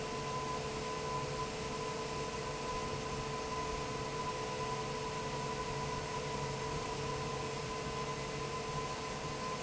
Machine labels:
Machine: fan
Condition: normal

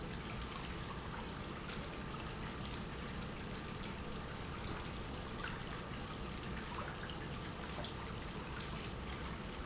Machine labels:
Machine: pump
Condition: normal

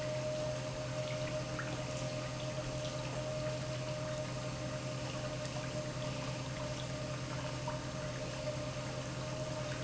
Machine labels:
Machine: pump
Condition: normal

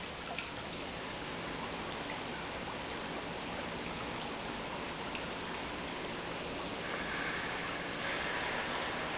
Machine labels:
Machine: pump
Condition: normal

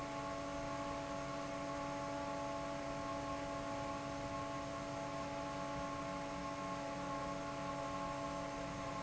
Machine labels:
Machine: fan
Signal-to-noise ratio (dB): 0 dB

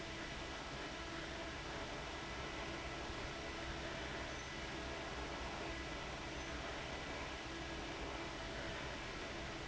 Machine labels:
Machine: fan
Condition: abnormal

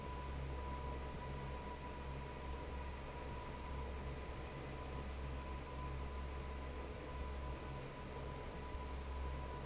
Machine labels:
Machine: fan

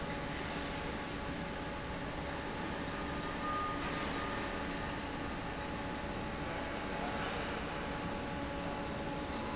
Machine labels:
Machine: fan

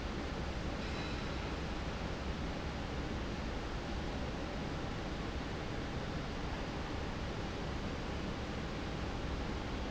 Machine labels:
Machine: fan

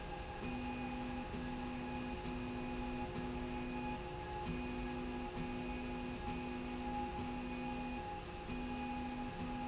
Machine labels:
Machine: slide rail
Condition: normal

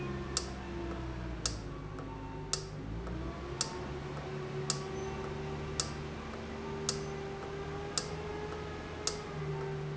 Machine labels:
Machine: valve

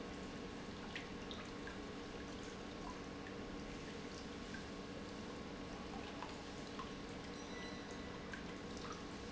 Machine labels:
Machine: pump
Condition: normal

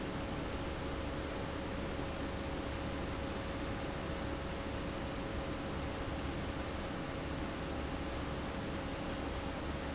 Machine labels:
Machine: fan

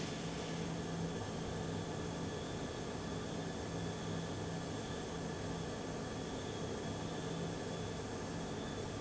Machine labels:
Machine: fan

